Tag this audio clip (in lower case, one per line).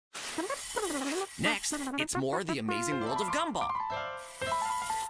music
speech